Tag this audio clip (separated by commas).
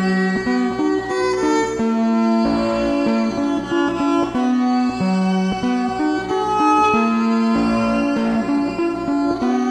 Music, Musical instrument, fiddle